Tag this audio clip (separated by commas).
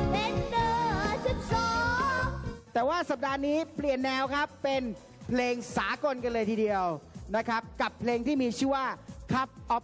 Speech, Child singing, Music